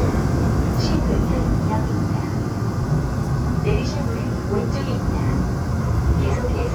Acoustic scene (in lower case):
subway train